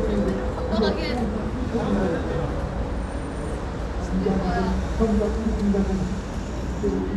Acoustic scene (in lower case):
street